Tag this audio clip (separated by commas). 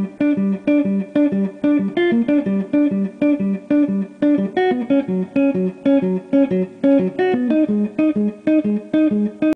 Plucked string instrument, Musical instrument, Guitar, Strum, Music